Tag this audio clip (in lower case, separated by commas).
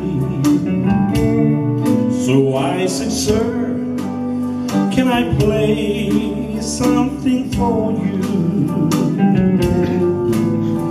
music, male singing